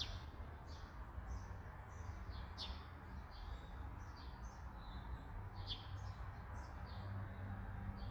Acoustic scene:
park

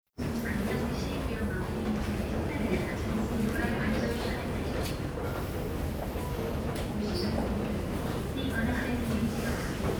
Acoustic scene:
subway station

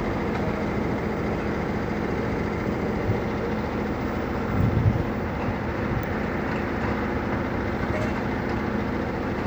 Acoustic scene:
street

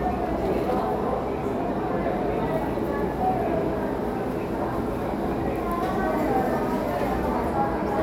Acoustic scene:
crowded indoor space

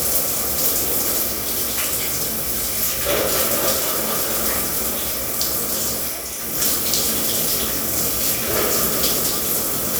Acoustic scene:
restroom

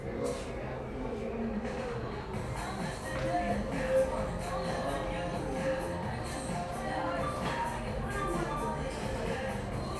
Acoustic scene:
cafe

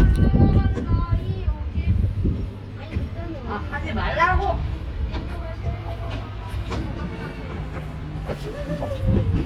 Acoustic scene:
residential area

